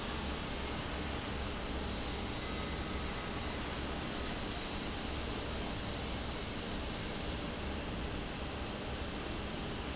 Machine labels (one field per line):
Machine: fan